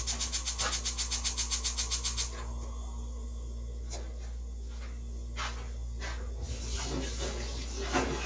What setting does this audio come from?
kitchen